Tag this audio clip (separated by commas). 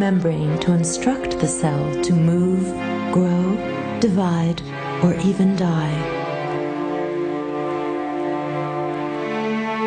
Music, Speech